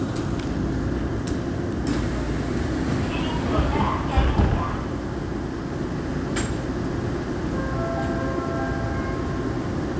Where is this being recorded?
on a subway train